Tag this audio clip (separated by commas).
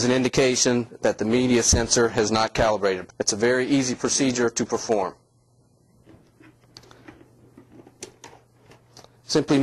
Speech